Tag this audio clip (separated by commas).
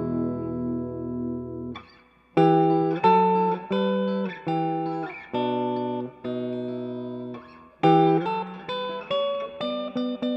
Guitar, Plucked string instrument, Strum, Musical instrument, Electric guitar, Music